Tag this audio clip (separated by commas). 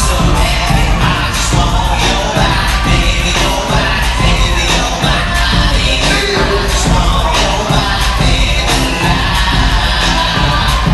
Music